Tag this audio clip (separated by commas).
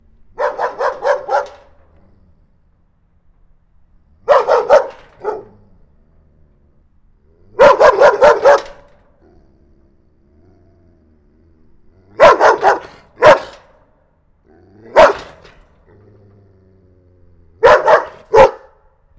pets, Bark, Dog, Animal